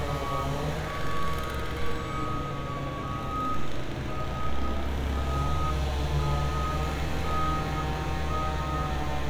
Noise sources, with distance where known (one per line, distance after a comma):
unidentified powered saw